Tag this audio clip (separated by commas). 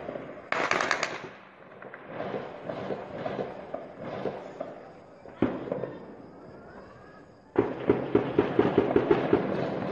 Speech